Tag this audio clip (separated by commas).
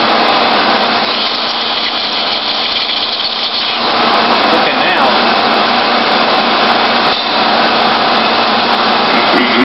Speech